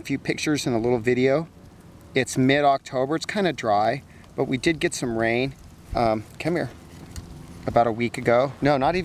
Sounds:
speech, snake

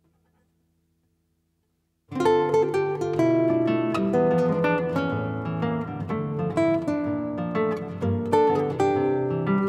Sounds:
music

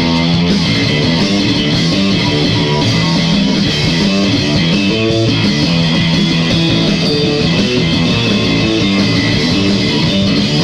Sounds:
musical instrument, plucked string instrument, music, guitar

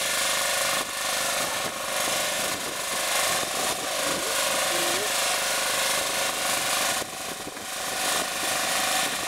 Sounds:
vibration, outside, rural or natural

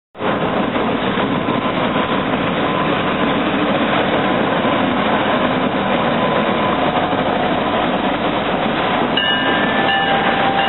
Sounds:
rail transport, train, vehicle, train wagon

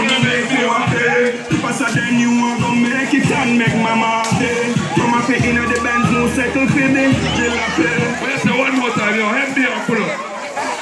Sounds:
music, speech

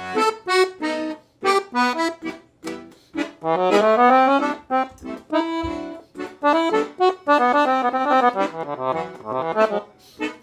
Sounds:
musical instrument, music, accordion

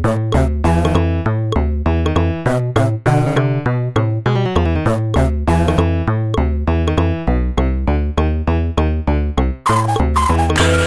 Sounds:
music

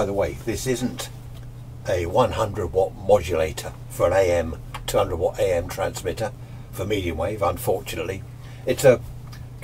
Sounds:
speech

